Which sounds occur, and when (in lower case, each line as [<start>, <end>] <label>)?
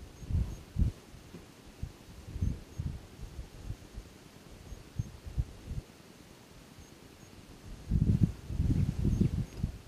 [0.00, 9.85] background noise
[0.00, 9.85] wind
[0.10, 0.22] bleep
[0.10, 0.48] wind noise (microphone)
[0.42, 0.59] bleep
[0.71, 0.99] wind noise (microphone)
[1.75, 4.06] wind noise (microphone)
[2.34, 2.51] bleep
[2.68, 2.82] bleep
[4.61, 4.75] bleep
[4.72, 5.82] wind noise (microphone)
[4.92, 5.15] bleep
[6.78, 6.95] bleep
[7.17, 7.34] bleep
[7.71, 9.75] wind noise (microphone)
[8.60, 9.57] chirp
[9.01, 9.17] bleep
[9.45, 9.58] bleep